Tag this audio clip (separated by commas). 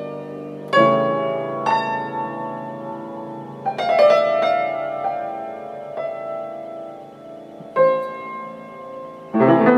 Piano, Music